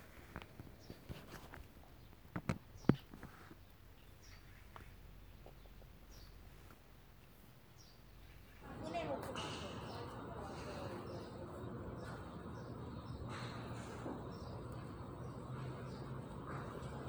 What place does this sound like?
park